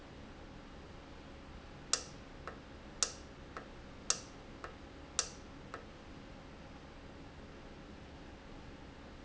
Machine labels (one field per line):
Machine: valve